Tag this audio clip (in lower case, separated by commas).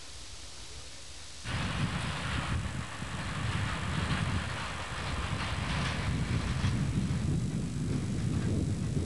vehicle, rail transport, train, railroad car